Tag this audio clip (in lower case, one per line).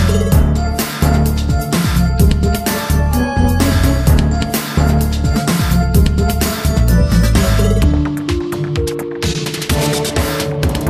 music